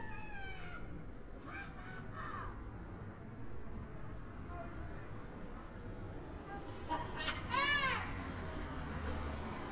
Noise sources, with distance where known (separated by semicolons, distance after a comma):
person or small group shouting